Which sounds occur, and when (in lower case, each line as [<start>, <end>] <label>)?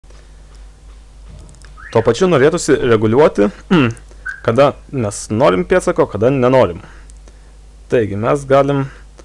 [0.00, 9.24] mechanisms
[0.48, 0.57] clicking
[1.29, 1.52] brief tone
[1.30, 1.65] generic impact sounds
[1.76, 2.05] brief tone
[1.87, 3.57] male speech
[3.81, 3.95] clicking
[4.20, 4.44] brief tone
[4.23, 4.35] clicking
[4.42, 4.70] male speech
[4.87, 6.79] male speech
[6.73, 7.07] breathing
[7.02, 7.14] clicking
[7.25, 7.62] breathing
[7.83, 8.87] male speech
[8.83, 9.04] breathing
[9.19, 9.24] breathing